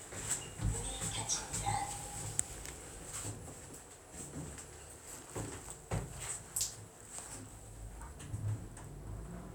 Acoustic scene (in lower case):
elevator